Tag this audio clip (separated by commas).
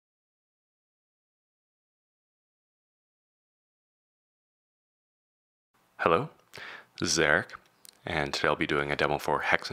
Speech